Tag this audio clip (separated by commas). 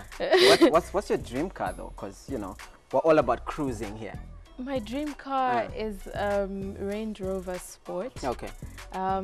Speech, Music